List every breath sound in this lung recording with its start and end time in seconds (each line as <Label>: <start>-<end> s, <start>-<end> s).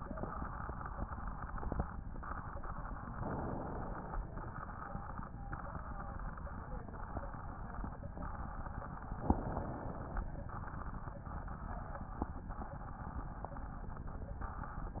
Inhalation: 3.19-4.26 s, 9.21-10.29 s